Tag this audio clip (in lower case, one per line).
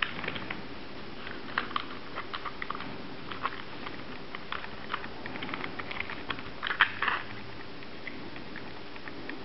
inside a small room